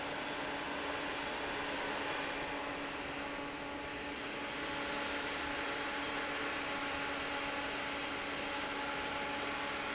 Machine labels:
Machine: fan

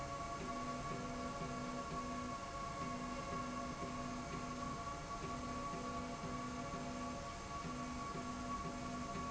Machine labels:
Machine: slide rail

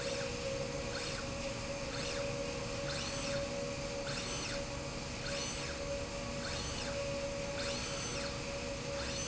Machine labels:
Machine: slide rail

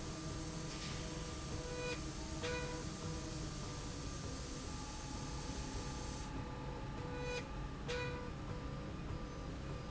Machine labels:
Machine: slide rail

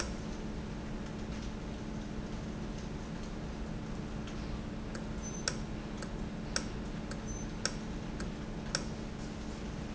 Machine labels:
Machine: valve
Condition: normal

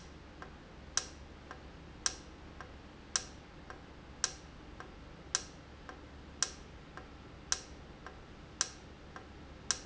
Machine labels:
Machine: valve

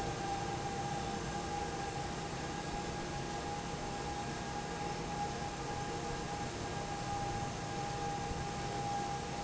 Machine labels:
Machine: fan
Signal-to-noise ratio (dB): -6 dB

